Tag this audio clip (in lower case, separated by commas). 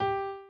musical instrument, piano, keyboard (musical), music